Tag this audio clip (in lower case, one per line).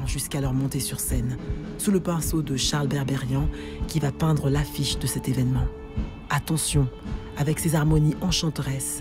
speech
music